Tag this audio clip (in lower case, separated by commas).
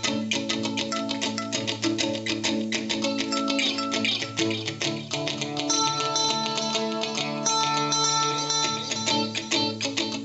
plucked string instrument, strum, music, acoustic guitar, musical instrument, guitar, playing acoustic guitar